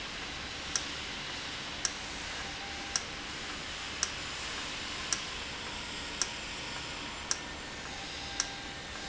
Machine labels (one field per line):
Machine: valve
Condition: normal